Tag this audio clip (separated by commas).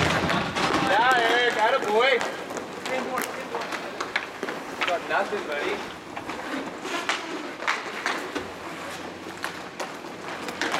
Speech